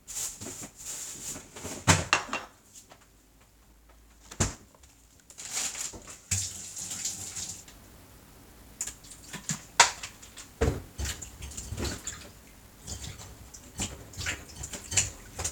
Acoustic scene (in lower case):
kitchen